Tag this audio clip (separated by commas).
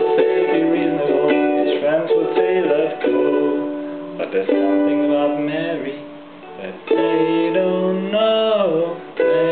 Music, Ukulele, Guitar, Plucked string instrument, Musical instrument, Banjo